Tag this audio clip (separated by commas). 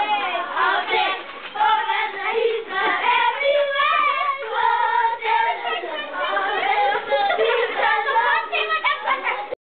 Speech, Child singing, Choir